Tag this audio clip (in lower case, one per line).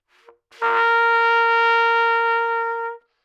brass instrument
musical instrument
trumpet
music